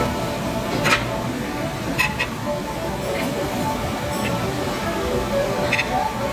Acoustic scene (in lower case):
restaurant